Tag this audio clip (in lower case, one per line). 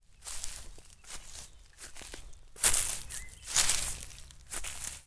wild animals
bird
footsteps
animal